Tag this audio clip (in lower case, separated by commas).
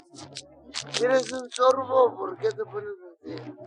human voice, speech